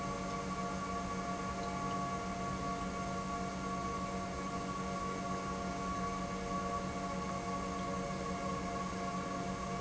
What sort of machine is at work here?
pump